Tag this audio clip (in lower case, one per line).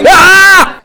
yell
screaming
shout
human voice